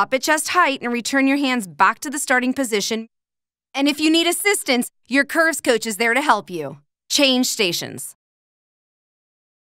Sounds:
Speech

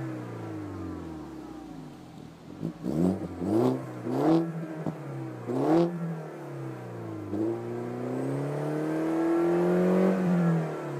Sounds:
Clatter

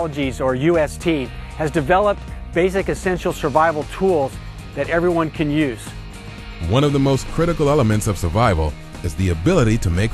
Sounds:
Music, Speech

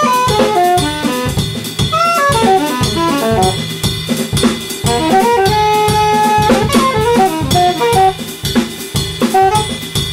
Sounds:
Saxophone, Music, Drum, Musical instrument, Jazz, Percussion, Drum kit, Brass instrument

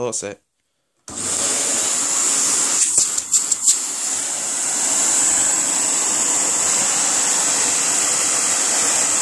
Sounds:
Vacuum cleaner, Speech

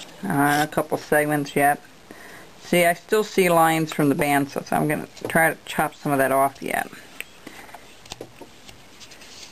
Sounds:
Speech, Bird, inside a small room

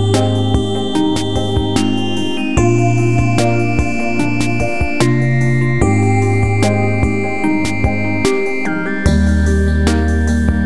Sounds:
Music

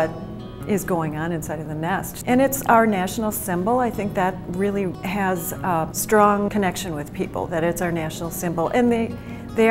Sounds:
Speech, Music

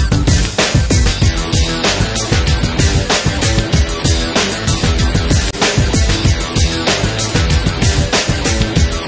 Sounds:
Music

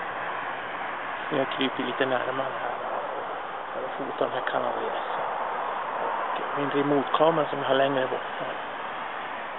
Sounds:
Speech

